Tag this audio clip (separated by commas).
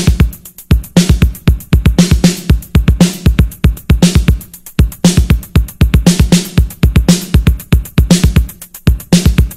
Sampler, Music